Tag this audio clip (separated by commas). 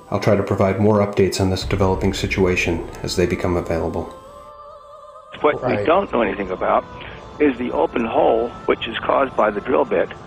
Music, Speech